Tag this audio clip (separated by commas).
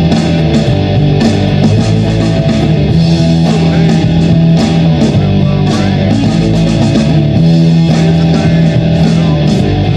Rhythm and blues, Music, Blues